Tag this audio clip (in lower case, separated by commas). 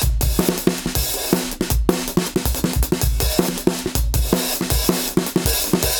musical instrument, music, drum kit, percussion